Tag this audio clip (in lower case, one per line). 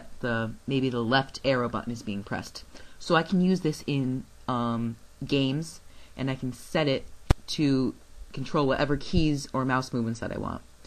speech